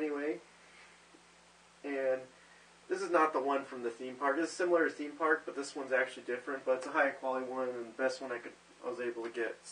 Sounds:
speech

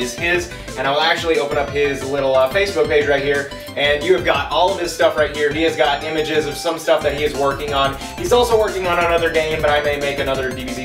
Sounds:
speech, music

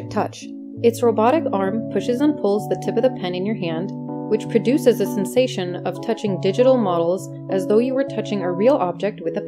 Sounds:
speech, music

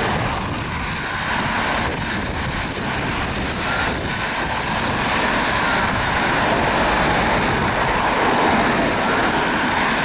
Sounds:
police car (siren)

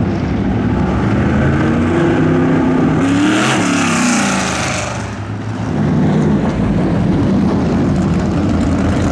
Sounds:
clatter

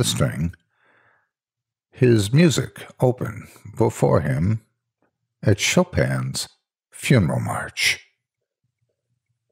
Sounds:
speech

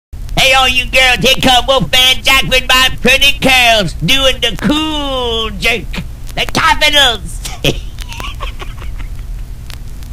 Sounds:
speech

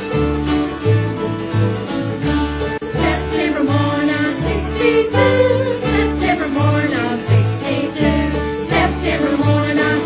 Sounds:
country, music

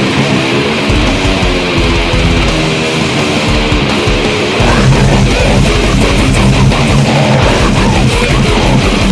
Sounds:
guitar, strum, music, plucked string instrument, musical instrument, electric guitar

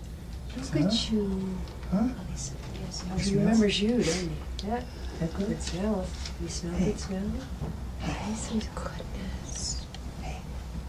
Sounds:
speech

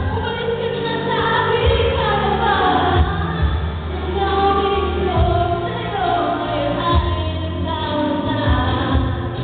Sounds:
female singing, music

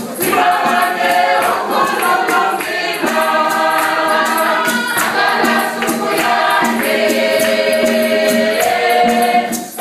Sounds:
choir, music

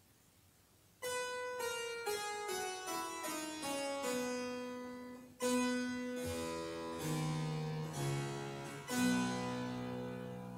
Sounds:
playing harpsichord

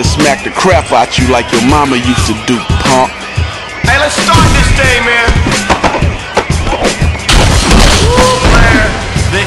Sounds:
speech, music

